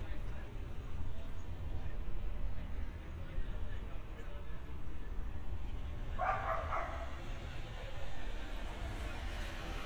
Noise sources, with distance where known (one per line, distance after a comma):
dog barking or whining, near